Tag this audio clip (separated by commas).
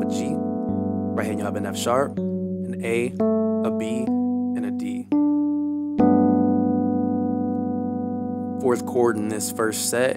Music, Speech, Keyboard (musical), Piano, Musical instrument